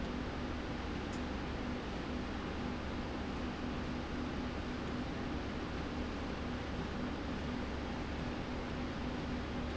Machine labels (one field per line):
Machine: slide rail